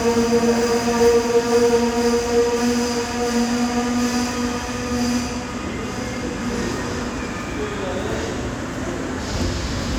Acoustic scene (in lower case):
subway station